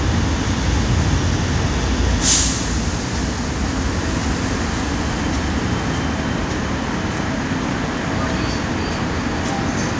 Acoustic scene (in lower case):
subway station